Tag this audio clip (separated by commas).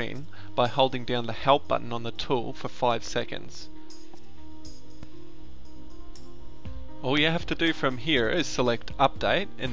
Speech, Music